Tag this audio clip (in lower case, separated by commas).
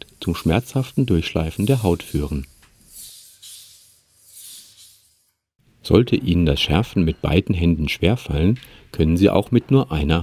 sharpen knife